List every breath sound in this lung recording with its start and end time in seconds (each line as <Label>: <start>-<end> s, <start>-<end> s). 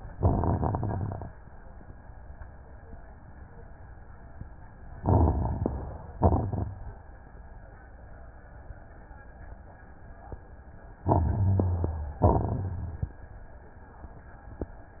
Inhalation: 4.93-6.13 s, 10.98-12.18 s
Exhalation: 0.11-1.31 s, 6.15-6.72 s, 12.24-13.19 s
Crackles: 0.11-1.31 s, 4.93-6.13 s, 6.15-6.72 s, 10.98-12.18 s, 12.24-13.19 s